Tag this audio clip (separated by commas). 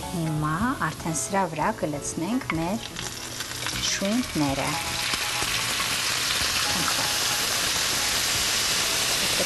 Frying (food), Music, Speech